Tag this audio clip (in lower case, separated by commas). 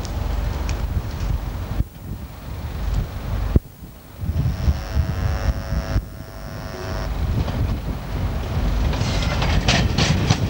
rail transport, subway, railroad car, train, clickety-clack